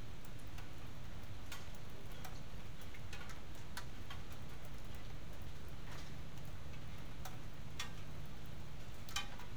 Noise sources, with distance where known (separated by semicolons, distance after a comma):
background noise